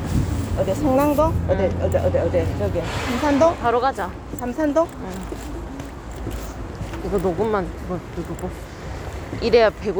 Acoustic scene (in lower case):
bus